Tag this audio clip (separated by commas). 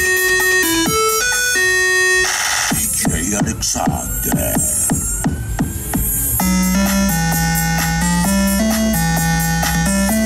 Speech, Music